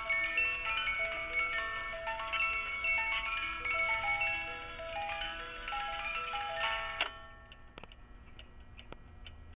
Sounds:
Music

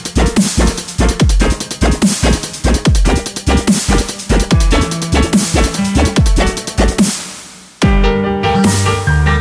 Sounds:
Dubstep, Electronic music, Music

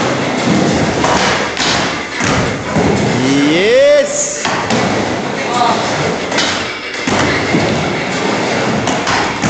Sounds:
Speech

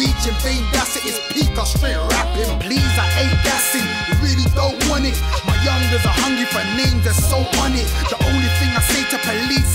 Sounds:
Dance music, Music

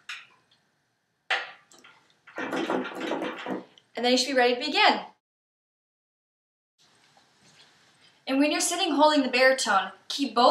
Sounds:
Speech

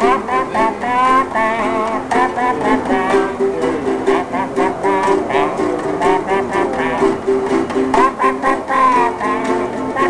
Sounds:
inside a small room, Music, Ukulele

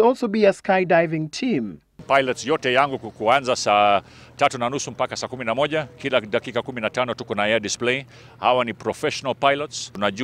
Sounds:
Speech

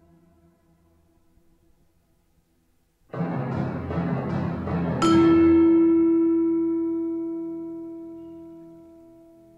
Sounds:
Music, Percussion

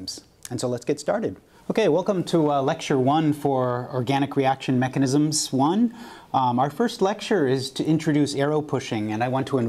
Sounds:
Speech

